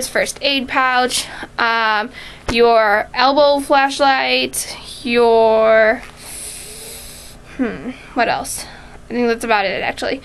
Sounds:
speech

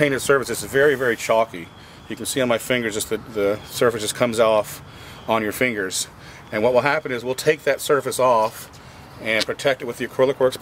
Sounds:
speech

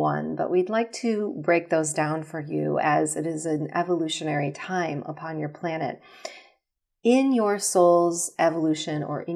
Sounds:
speech

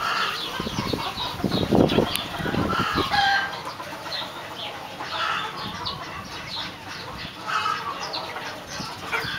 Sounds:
pheasant crowing

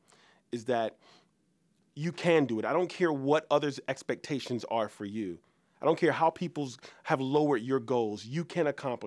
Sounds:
speech

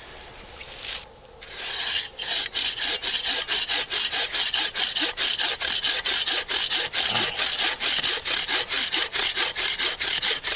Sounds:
outside, rural or natural

